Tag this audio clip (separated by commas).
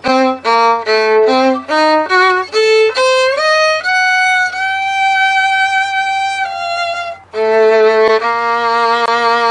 Musical instrument, Music, Violin